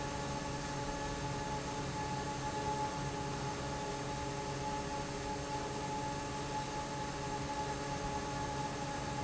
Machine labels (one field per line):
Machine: fan